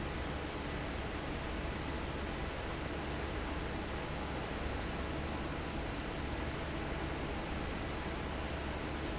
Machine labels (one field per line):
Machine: fan